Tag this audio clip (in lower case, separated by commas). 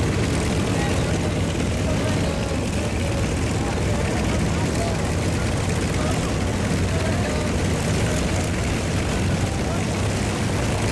vehicle, fixed-wing aircraft, speech, aircraft